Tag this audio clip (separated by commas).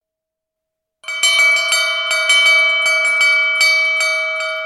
Alarm